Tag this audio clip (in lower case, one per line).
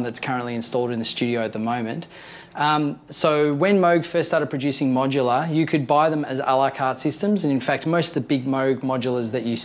speech